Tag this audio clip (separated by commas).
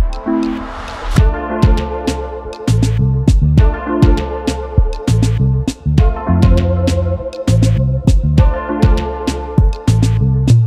Music